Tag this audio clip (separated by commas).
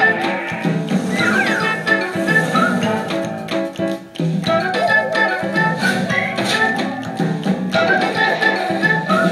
Music